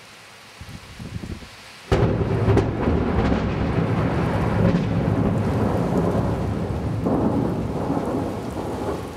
Thunder cracks slowly and rain is falling down